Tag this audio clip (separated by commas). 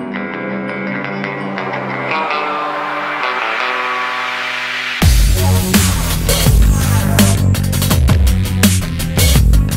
Music, Exciting music